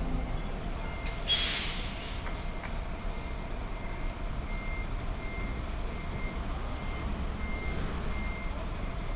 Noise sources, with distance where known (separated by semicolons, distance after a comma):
large-sounding engine, near; reverse beeper